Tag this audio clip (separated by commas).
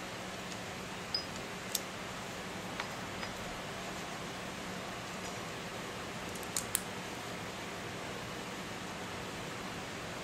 inside a small room